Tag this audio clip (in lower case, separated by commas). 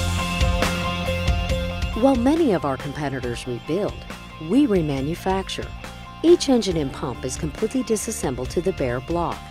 music, speech